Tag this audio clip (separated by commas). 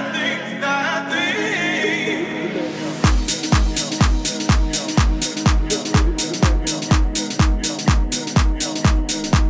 Music, Disco